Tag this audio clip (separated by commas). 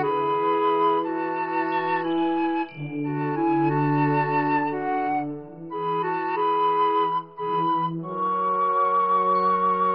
Music